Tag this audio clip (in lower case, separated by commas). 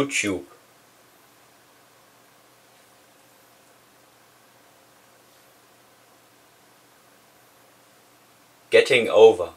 monologue, speech, male speech